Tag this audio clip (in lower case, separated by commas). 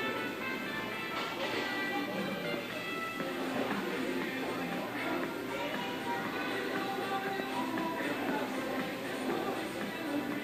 music